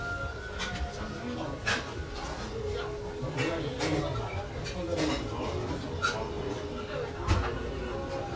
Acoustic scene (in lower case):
restaurant